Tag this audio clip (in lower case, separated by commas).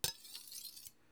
silverware, home sounds